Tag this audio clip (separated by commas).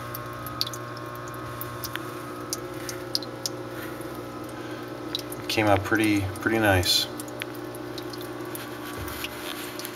Speech